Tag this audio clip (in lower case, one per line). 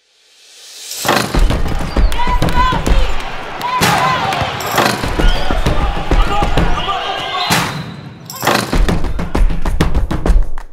basketball bounce